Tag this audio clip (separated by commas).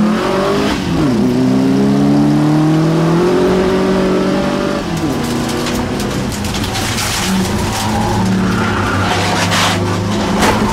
Car, Motor vehicle (road), Car passing by, Vehicle, Skidding